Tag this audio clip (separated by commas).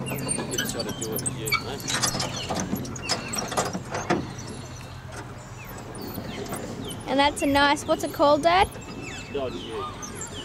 Speech